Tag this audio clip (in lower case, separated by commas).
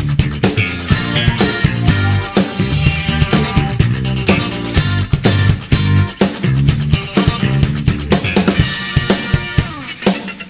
dance music, music